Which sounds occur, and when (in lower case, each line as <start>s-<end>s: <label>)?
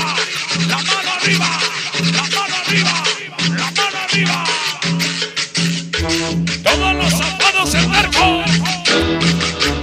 0.0s-0.3s: male singing
0.0s-9.8s: music
0.7s-1.8s: male singing
2.1s-3.4s: male singing
3.5s-5.0s: male singing
6.6s-8.9s: male singing